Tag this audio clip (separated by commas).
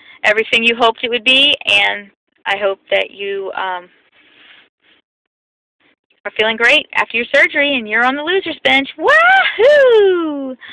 Speech, Whoop